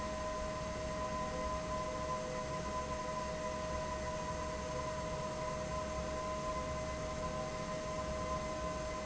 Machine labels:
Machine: fan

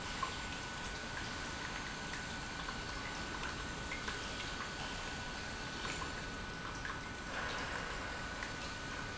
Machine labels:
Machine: pump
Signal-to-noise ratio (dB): 0 dB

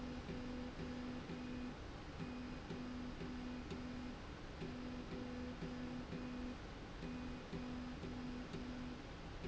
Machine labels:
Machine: slide rail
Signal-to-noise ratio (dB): 6 dB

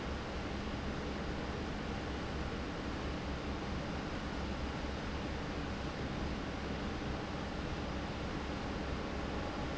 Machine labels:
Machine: fan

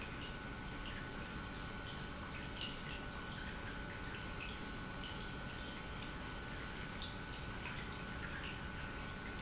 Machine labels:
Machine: pump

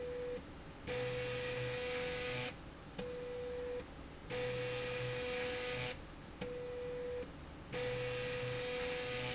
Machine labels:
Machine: slide rail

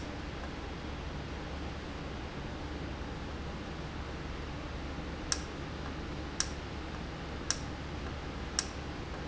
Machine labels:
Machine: valve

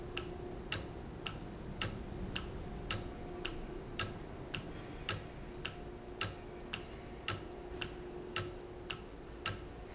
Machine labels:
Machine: valve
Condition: normal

